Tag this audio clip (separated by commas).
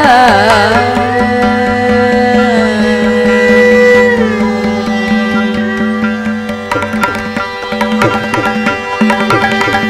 Musical instrument, Music, Classical music, Carnatic music, Singing, Tabla